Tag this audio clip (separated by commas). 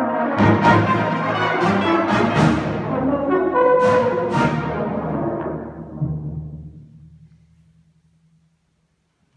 Music, Orchestra, Brass instrument, Classical music